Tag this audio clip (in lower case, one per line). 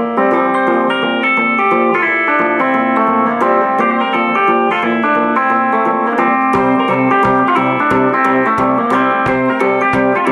plucked string instrument
guitar
music
acoustic guitar
strum
musical instrument